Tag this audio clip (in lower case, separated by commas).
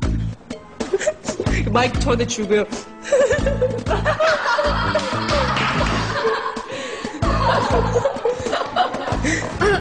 music, man speaking, speech